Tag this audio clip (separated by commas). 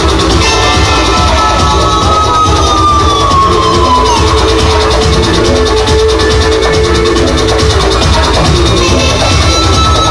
Strum, Electric guitar, Guitar, Plucked string instrument, Bass guitar, Musical instrument, Electronic music, Music